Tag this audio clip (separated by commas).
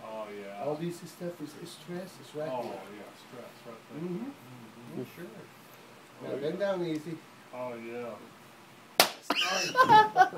Speech